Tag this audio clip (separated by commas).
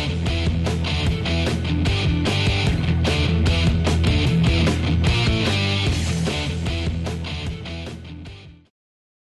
Music